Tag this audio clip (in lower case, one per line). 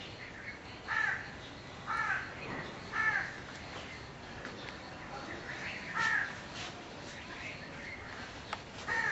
police car (siren)
outside, urban or man-made